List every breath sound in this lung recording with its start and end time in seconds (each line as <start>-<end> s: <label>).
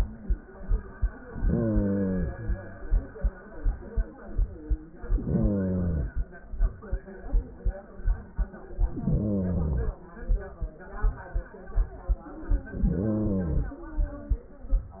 1.50-2.80 s: inhalation
4.98-6.29 s: inhalation
8.77-10.07 s: inhalation
12.59-13.89 s: inhalation